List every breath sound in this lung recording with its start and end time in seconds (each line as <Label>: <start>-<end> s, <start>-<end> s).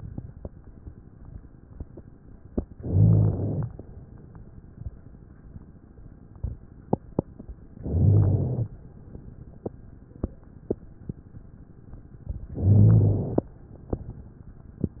Inhalation: 2.75-3.66 s, 7.78-8.69 s, 12.56-13.47 s
Rhonchi: 2.75-3.66 s, 7.78-8.69 s, 12.56-13.47 s